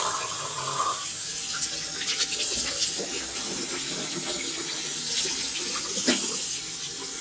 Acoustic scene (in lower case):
restroom